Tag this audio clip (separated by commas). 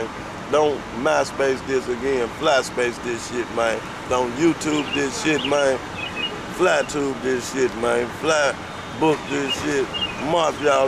Speech